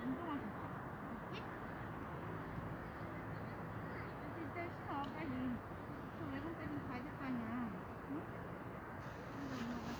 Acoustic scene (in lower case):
residential area